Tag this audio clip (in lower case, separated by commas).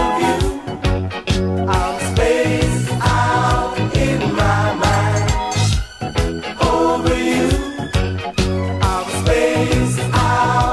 music